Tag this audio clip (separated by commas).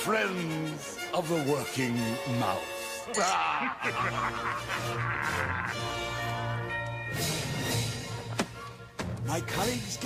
Speech, Music